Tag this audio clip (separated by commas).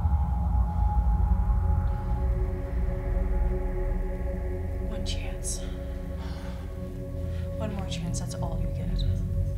Speech, Music